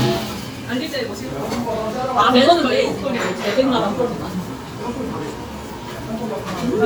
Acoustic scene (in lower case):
restaurant